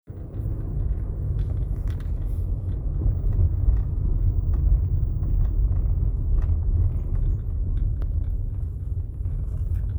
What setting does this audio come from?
car